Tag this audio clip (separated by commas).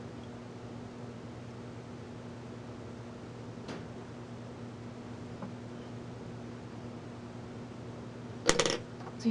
Speech, inside a small room